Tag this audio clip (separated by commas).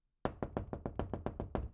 Door, home sounds, Knock